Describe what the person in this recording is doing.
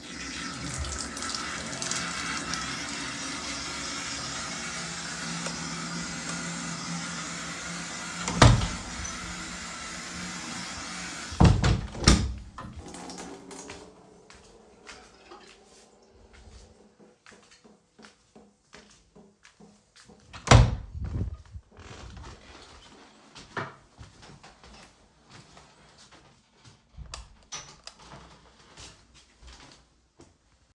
I am in the kitchen finishing up cleaning, As I turn off the water, I close the kitchen door and walk through the hallway to my room.